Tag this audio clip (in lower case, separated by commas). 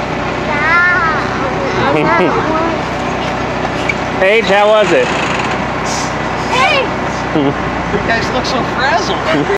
speech, bus, vehicle